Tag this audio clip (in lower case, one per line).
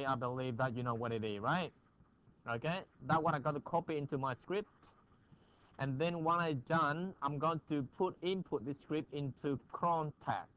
speech